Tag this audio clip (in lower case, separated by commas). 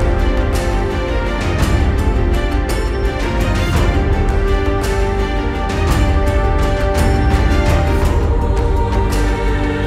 music